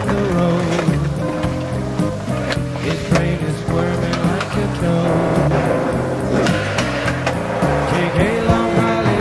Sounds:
Music, Skateboard

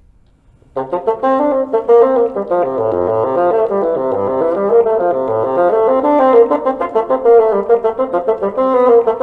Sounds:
playing bassoon

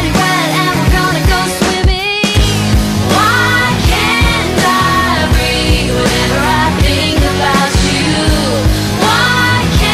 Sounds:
Music, Punk rock

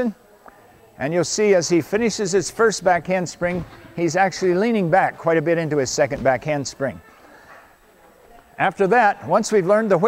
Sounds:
Speech

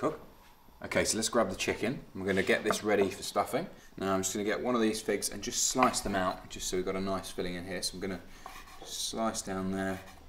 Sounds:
Speech

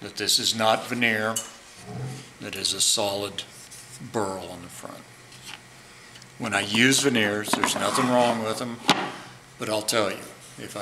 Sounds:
Speech

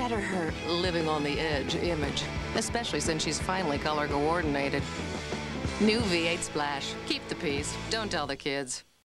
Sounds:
Music, Speech

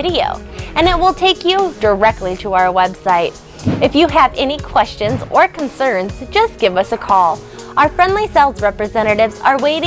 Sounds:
Music, Speech

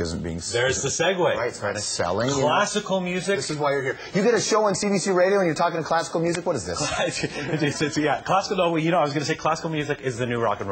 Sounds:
Speech

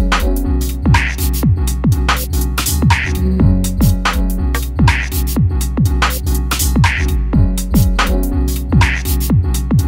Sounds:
Music

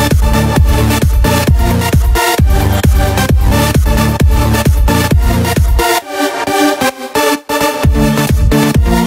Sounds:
House music, Music

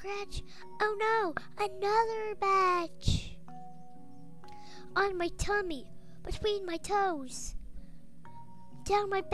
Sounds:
Speech

